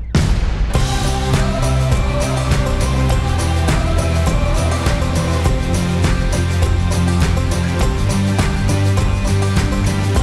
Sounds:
exciting music
music
background music

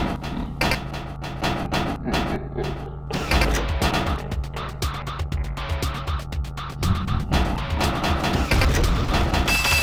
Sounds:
music

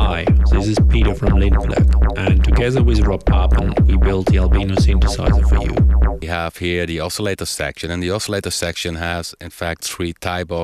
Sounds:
synthesizer
speech
music

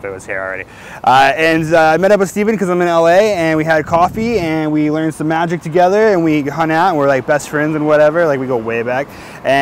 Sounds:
speech

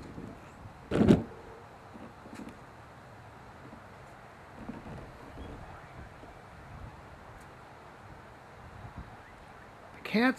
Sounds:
speech

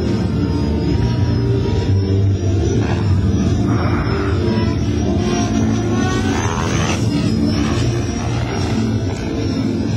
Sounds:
aircraft

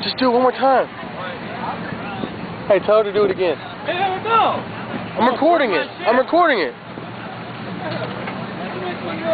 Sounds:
vehicle
speech

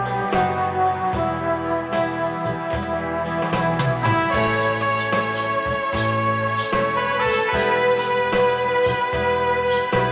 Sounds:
piano
electric piano
keyboard (musical)

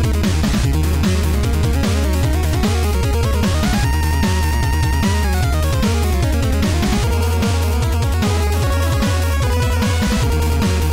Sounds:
music
background music

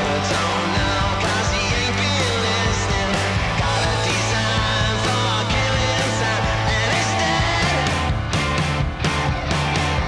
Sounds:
music

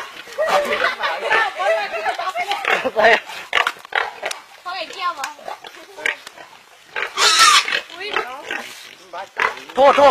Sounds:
outside, rural or natural
speech
animal
pig

